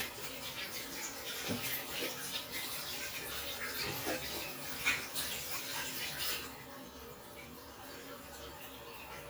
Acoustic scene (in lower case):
restroom